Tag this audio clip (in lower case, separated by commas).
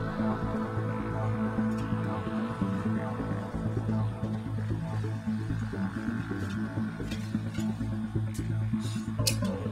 music